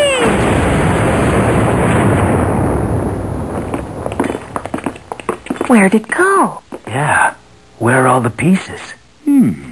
An explosion, footsteps, and male and female voices